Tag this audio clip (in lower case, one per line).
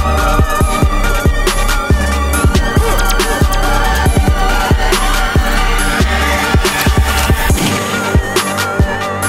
music